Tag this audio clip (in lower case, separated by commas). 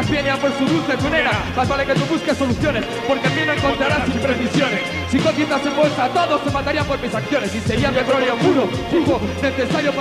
music